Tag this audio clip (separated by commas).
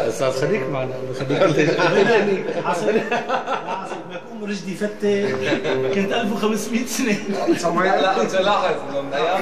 Speech